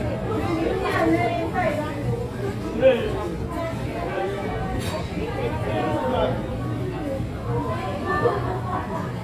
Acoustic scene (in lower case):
crowded indoor space